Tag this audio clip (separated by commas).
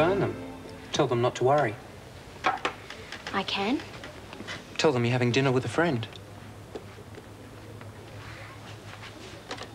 Speech